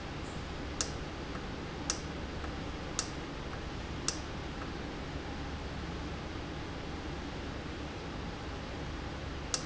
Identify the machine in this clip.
valve